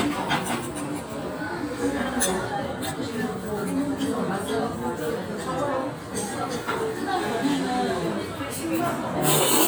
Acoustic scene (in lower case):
restaurant